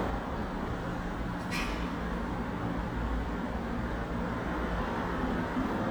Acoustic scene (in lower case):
residential area